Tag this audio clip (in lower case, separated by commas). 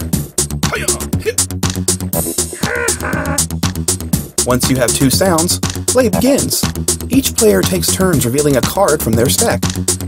speech, music